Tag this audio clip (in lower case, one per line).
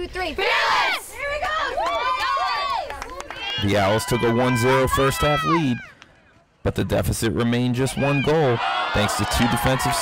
pop
speech